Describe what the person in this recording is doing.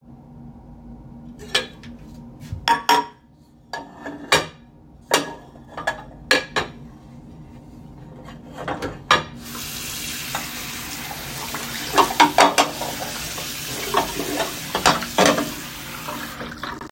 I put the dishes in the kitchen sink, opened the water tap, and started washing them.